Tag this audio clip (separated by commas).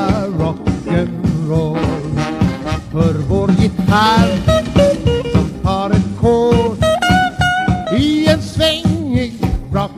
Rock and roll, Music